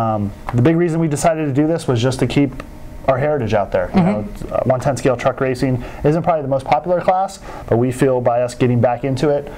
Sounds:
speech

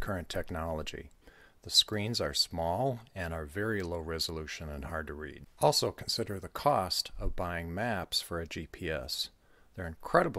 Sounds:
speech

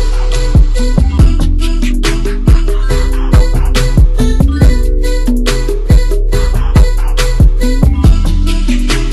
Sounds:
music

